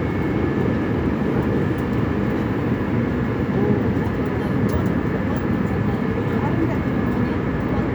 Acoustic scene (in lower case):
subway train